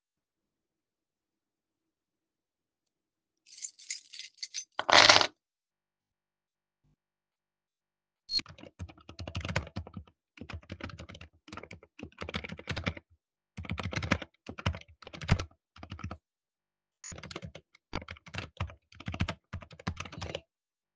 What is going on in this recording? I set my keychain down on the desk causing a jangling sound as the keys landed. I then sat down and began typing on the keyboard. The recording captures the transition from arriving at the desk to beginning work.